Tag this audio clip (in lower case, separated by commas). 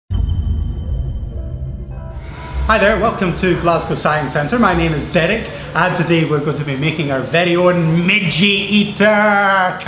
music, speech